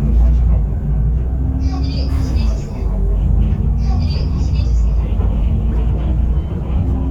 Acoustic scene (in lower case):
bus